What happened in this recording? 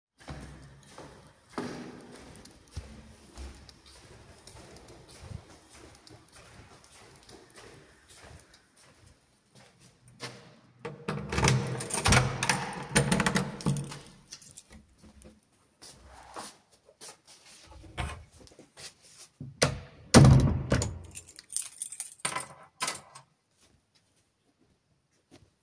I walked down the hallway. I opened the door, and I closed the door.